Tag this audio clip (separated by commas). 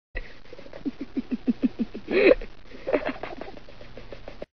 Giggle